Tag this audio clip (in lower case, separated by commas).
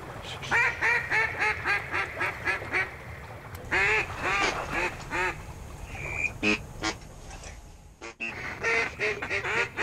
bird, duck